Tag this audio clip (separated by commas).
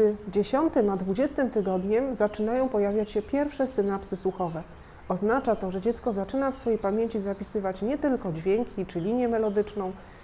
Speech